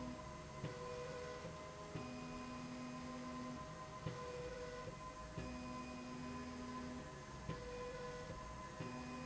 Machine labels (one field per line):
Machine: slide rail